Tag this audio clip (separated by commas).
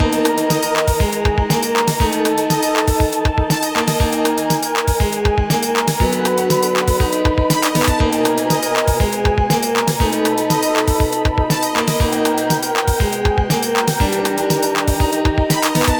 Music, Organ, Musical instrument, Piano, Keyboard (musical)